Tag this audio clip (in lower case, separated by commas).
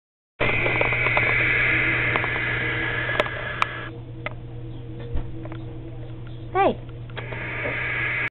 speech